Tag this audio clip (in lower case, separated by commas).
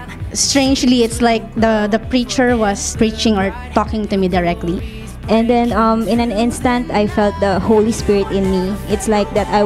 music, speech